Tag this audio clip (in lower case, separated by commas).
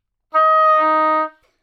musical instrument, music, wind instrument